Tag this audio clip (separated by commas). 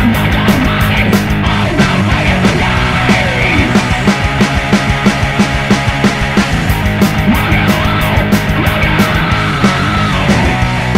Rock and roll, Music